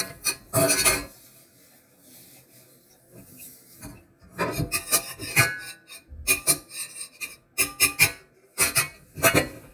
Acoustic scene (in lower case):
kitchen